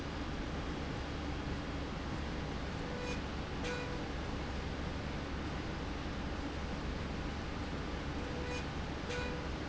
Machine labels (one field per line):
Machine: slide rail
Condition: normal